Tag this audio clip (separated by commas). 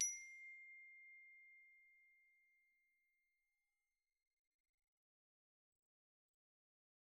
Music, Mallet percussion, Percussion, Glockenspiel, Musical instrument